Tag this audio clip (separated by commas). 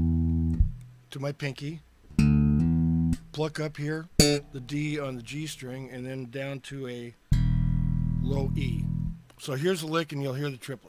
Music, Speech